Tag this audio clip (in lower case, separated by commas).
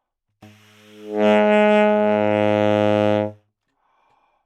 music, wind instrument, musical instrument